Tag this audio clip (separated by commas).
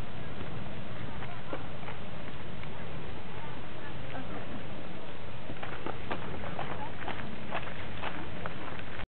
Eruption